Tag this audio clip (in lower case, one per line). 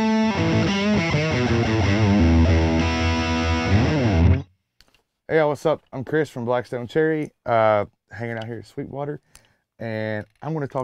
speech
music